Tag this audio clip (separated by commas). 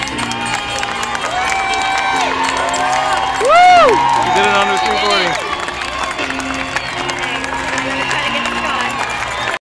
Speech, Music, outside, urban or man-made